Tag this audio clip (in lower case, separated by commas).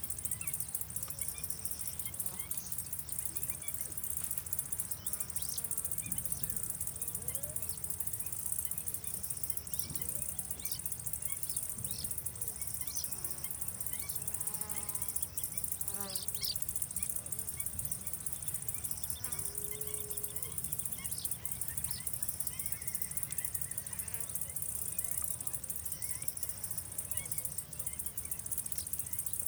wild animals, insect, cricket, animal